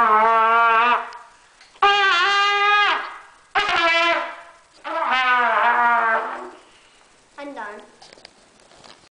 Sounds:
Trumpet, Music, Musical instrument, Speech

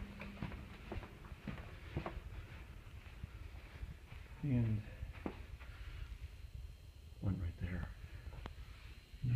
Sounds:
Speech

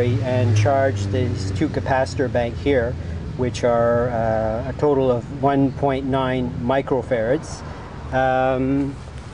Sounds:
Speech

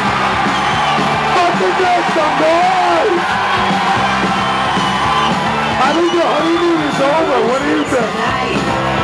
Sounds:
Music, Speech

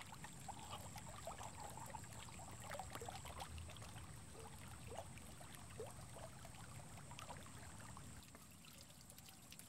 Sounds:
dribble

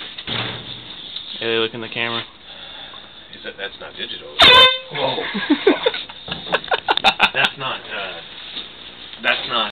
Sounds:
Vehicle horn, Speech, truck horn, inside a small room

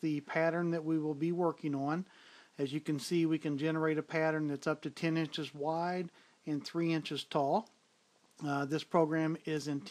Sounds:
Speech

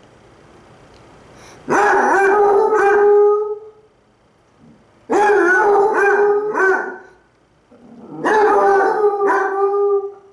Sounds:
pets, Dog, Bark, Animal

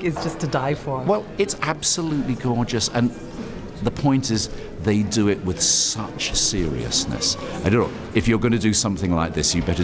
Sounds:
Speech, inside a public space

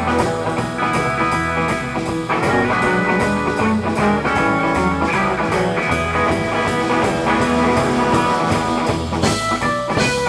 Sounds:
Guitar, Music

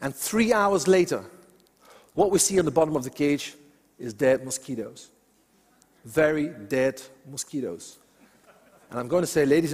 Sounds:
mosquito buzzing

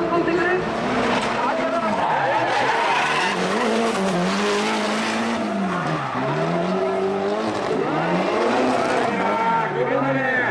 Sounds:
auto racing, Speech, Skidding, Vehicle

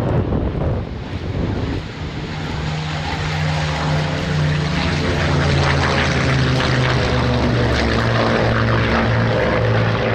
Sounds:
airplane flyby

